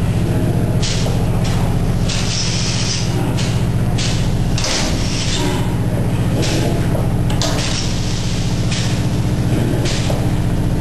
The loud drone of a motor with rhythmic metallic rattling sounds in the background